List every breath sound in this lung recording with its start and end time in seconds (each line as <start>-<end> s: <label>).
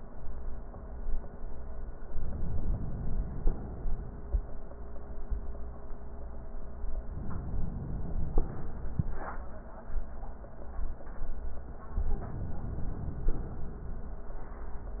2.12-3.74 s: inhalation
3.74-4.53 s: exhalation
7.06-8.47 s: inhalation
8.47-9.13 s: exhalation
11.96-13.30 s: inhalation
13.30-14.06 s: exhalation